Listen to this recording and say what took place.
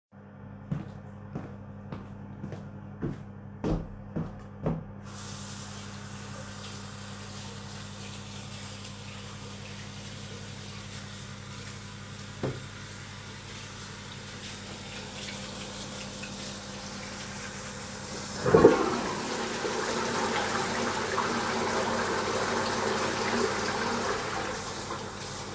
The device is placed stationary in the room. Footsteps are heard first, followed by running water while hands are being washed. During the scene, a toilet is flushed while the water is still running. Running water continues again afterward.